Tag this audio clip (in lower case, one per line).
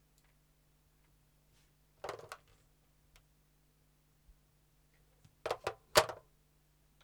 telephone
alarm